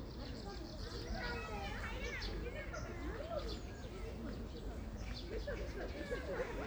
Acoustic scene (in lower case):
park